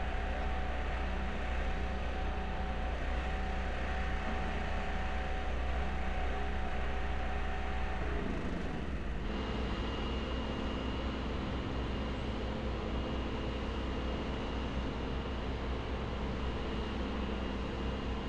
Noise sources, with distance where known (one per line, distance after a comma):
engine of unclear size